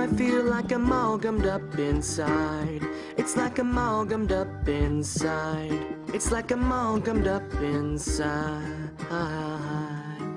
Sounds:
music

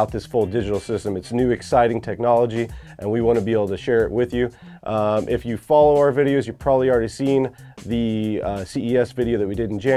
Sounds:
speech, music

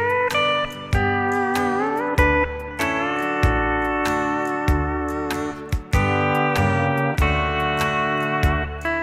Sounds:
playing steel guitar

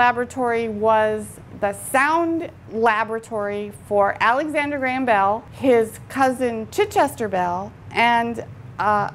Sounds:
speech

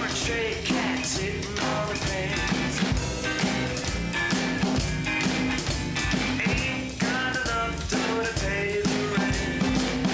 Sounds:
musical instrument, drum, drum kit, music

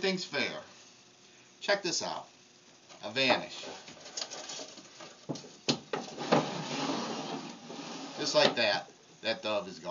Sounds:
speech

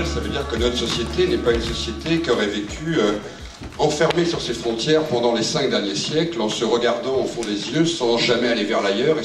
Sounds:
speech, music

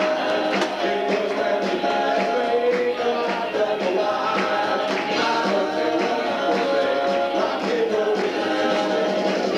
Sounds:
rock and roll, roll, music

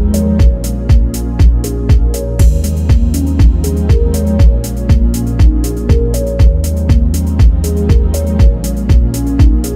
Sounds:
music

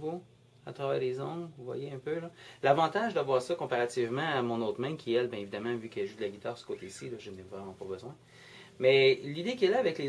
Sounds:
speech

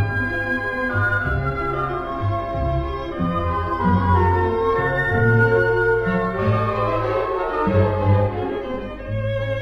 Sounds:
musical instrument, orchestra, fiddle, music

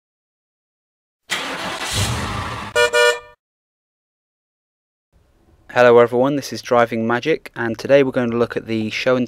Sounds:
vehicle

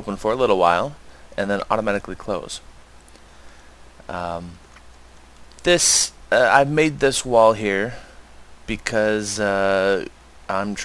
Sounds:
speech

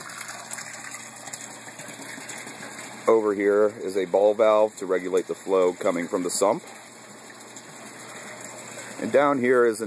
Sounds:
water, bathtub (filling or washing)

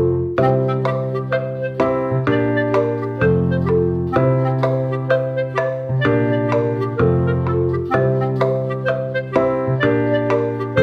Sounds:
music

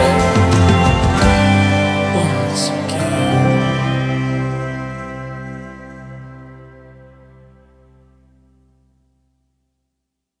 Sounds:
music, steel guitar

